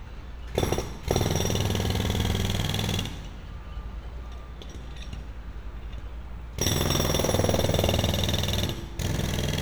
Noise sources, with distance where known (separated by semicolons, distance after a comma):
jackhammer, near